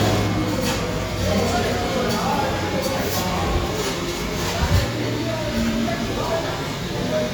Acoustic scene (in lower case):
cafe